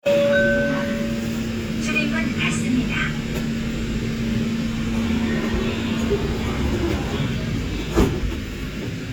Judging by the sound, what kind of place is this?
subway train